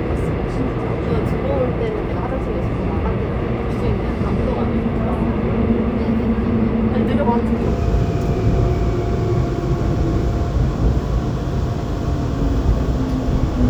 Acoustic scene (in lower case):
subway train